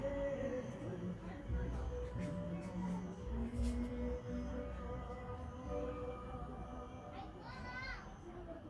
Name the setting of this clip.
park